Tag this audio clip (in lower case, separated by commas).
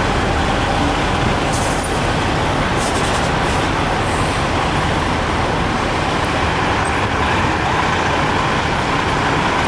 air brake, vehicle